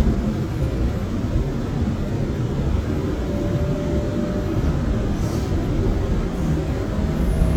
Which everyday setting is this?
subway train